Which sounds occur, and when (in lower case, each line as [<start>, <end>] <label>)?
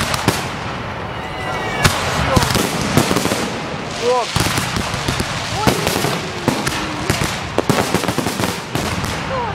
[0.00, 9.54] fireworks
[1.13, 1.79] whoop
[2.17, 7.11] conversation
[2.19, 2.46] man speaking
[3.95, 4.26] man speaking
[4.83, 5.24] human voice
[5.50, 7.11] female speech
[9.25, 9.54] female speech